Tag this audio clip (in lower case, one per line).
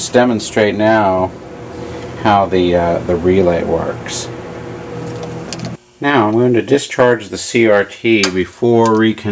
speech